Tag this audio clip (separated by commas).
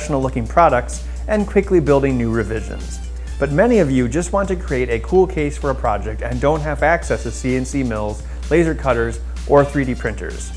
Music, Speech